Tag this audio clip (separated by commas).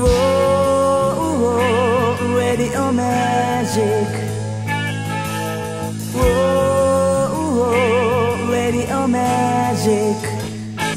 Music